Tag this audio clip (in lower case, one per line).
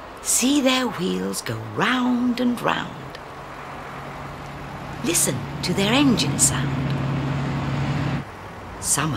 speech